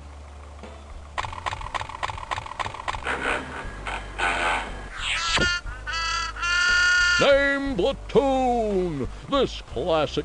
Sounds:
Speech, Music

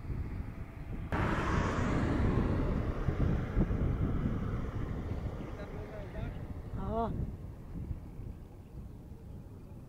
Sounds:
Speech, Animal

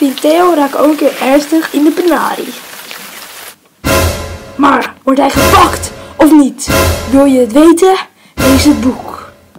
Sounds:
Music, Speech

